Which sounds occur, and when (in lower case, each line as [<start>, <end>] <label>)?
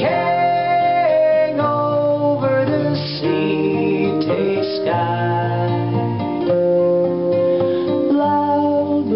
[0.00, 9.15] background noise
[0.00, 9.15] music
[8.14, 9.15] male singing